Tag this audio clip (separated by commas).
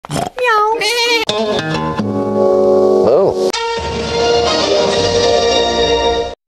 Music, Speech, Television